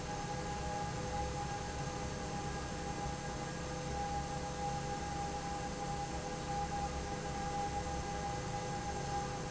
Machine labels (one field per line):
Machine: fan